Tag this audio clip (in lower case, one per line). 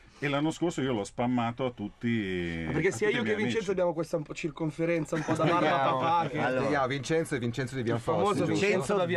speech